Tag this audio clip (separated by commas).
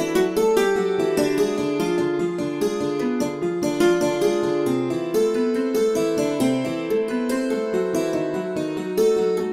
Musical instrument, Music